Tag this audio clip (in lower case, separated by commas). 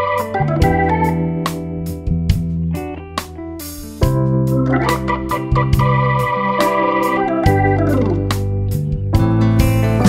music